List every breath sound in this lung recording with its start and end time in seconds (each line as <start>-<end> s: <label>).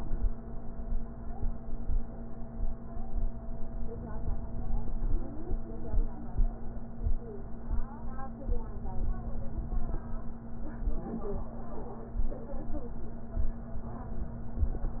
3.88-5.28 s: inhalation
8.52-9.93 s: inhalation